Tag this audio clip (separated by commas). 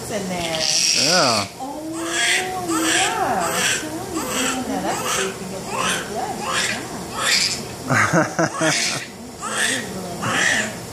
sobbing, Speech